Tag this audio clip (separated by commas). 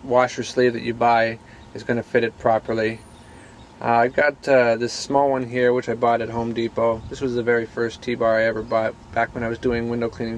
Speech